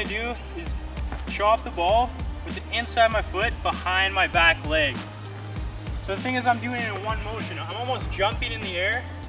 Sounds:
speech, music

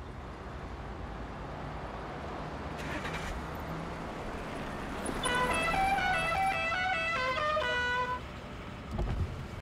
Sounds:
car horn, car, vehicle, outside, urban or man-made

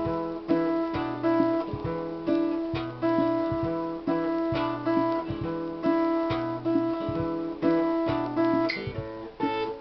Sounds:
music, guitar, plucked string instrument, musical instrument, blues

